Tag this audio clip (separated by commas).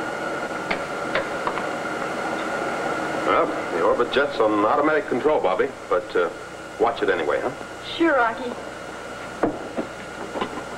Speech